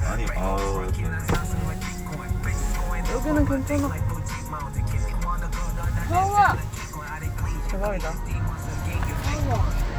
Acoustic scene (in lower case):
car